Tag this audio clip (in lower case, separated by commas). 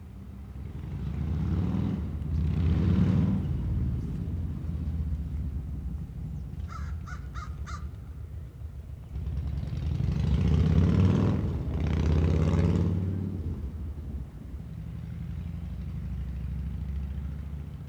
motor vehicle (road), vehicle, animal, crow, bird, wild animals, motorcycle